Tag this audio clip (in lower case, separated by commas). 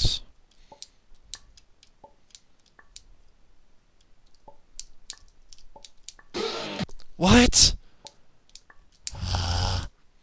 speech